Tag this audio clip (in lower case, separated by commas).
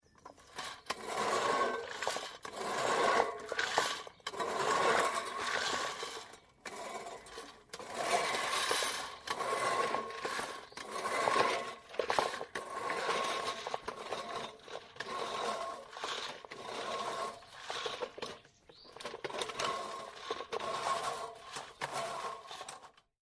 engine